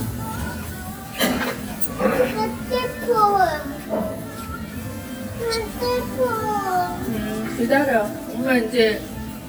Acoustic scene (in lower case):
restaurant